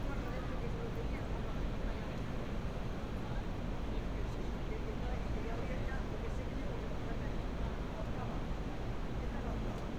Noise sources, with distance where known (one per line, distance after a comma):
person or small group talking